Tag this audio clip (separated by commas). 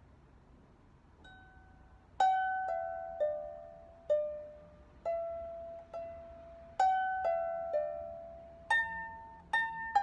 playing harp